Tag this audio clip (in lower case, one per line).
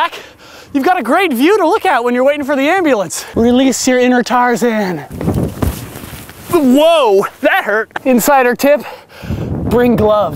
speech